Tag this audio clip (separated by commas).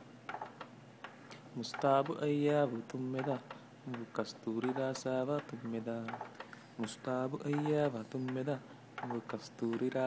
Lullaby, Speech